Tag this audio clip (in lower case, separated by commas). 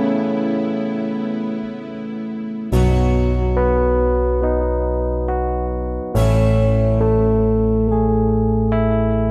music